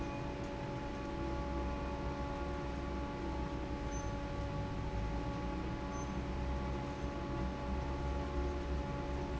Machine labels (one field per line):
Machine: fan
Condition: normal